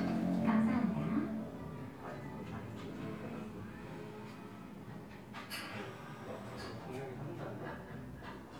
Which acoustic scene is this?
cafe